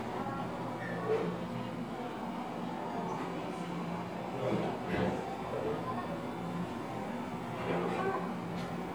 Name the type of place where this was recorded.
cafe